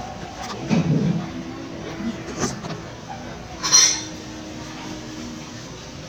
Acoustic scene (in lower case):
crowded indoor space